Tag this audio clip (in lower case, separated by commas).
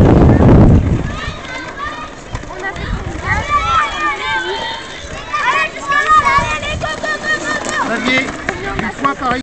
speech